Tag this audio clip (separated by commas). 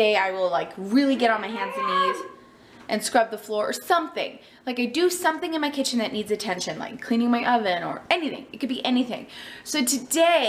Speech